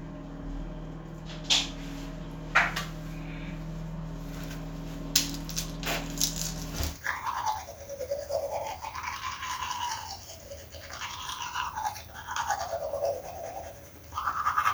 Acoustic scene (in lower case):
restroom